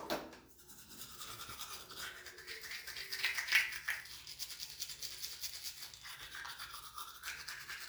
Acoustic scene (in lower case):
restroom